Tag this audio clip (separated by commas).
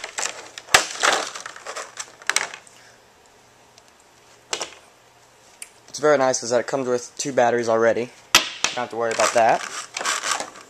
Speech